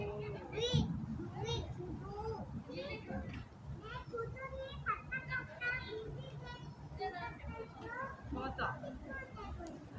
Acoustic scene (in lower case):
residential area